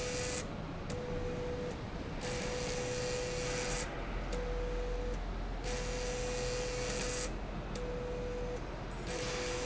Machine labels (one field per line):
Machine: slide rail